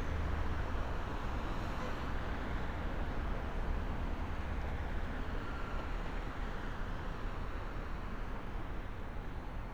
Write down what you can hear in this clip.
unidentified alert signal